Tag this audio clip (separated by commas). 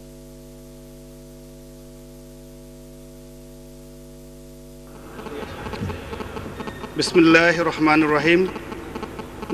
Speech, Narration, man speaking